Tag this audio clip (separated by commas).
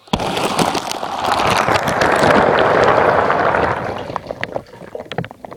Liquid, Fill (with liquid)